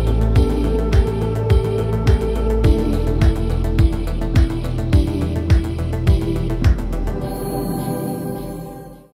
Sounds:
Music

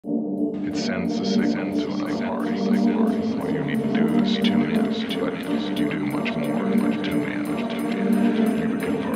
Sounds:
Electronic music, Music, Speech

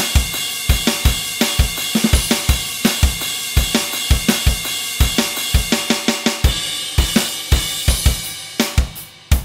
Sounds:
Drum, Music, Musical instrument, Bass drum, Drum kit

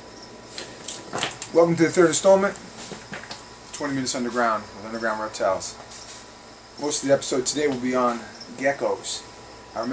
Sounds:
inside a small room, Speech

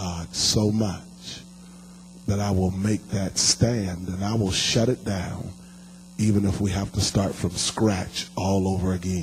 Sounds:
Speech

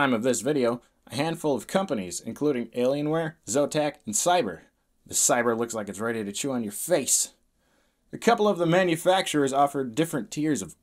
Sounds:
Speech

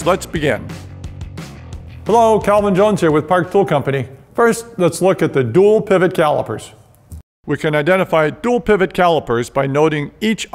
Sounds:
Speech

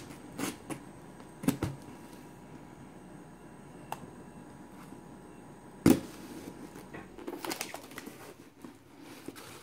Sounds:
inside a small room

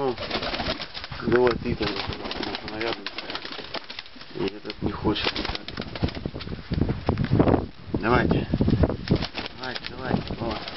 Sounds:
inside a small room, Speech, Bird

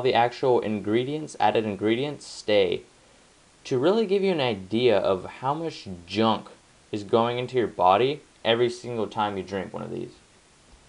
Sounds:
Speech

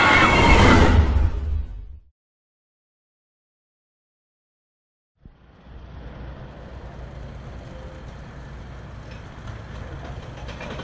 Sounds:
eagle screaming

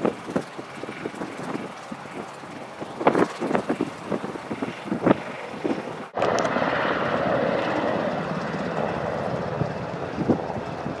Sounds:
Wind noise (microphone), Fire, Wind

